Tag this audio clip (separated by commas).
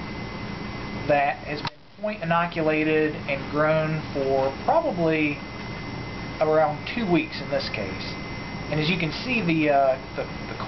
Speech